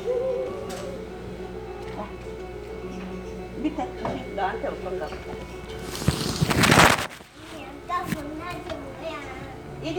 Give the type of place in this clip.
crowded indoor space